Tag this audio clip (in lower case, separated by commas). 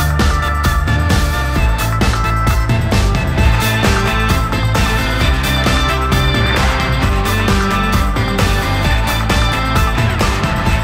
music